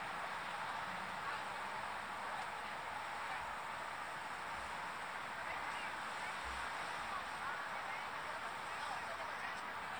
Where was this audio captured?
on a street